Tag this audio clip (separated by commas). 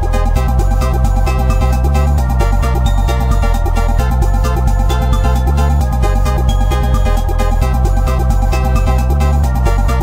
Music